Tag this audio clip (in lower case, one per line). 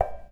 domestic sounds
dishes, pots and pans